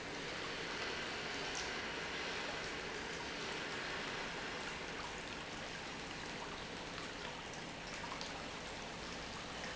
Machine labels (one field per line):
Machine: pump